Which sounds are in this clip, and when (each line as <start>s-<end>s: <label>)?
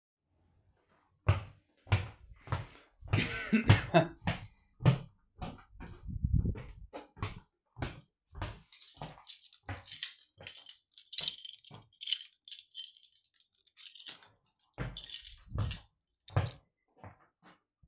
1.2s-3.1s: footsteps
3.5s-3.9s: footsteps
4.2s-8.2s: footsteps
8.3s-11.0s: footsteps
8.5s-16.7s: keys
11.5s-11.8s: footsteps
14.7s-17.3s: footsteps